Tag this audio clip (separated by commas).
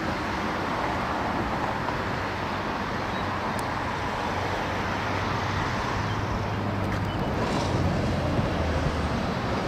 Vehicle, outside, urban or man-made